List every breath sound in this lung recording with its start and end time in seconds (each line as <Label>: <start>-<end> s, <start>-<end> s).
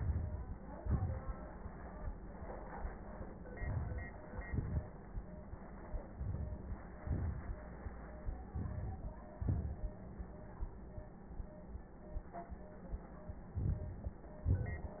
Inhalation: 0.00-0.55 s, 3.58-4.14 s, 6.17-6.78 s, 8.54-9.15 s, 13.60-14.16 s
Exhalation: 0.80-1.35 s, 4.34-4.86 s, 7.00-7.61 s, 9.47-9.96 s, 14.48-15.00 s